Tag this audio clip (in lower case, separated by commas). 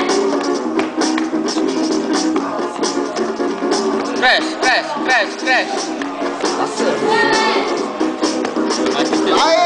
music, speech